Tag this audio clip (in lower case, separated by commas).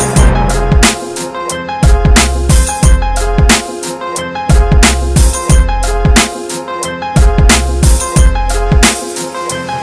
hip hop music, music